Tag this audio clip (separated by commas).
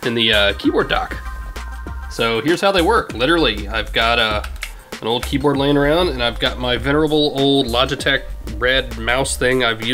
Speech, Music